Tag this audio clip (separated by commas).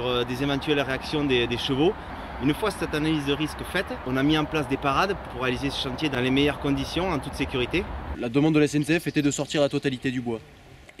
Speech